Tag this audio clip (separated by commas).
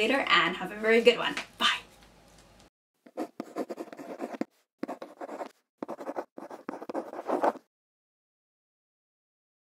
inside a small room, Speech